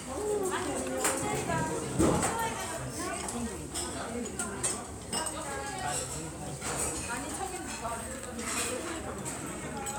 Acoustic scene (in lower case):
restaurant